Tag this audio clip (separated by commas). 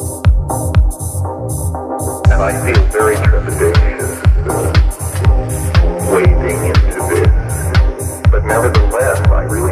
Music